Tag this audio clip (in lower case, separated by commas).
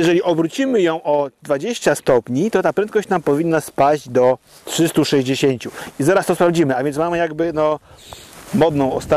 speech